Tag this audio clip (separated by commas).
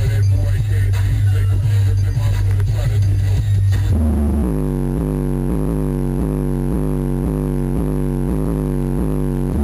Music